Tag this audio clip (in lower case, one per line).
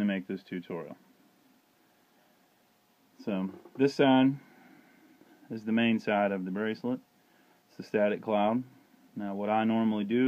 speech